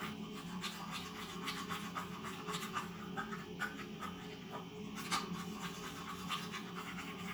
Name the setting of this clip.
restroom